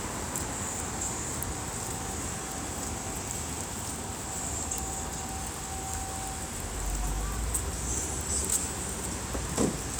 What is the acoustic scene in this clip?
street